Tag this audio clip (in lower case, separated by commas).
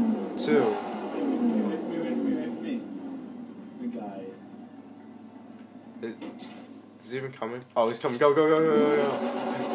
speech, vehicle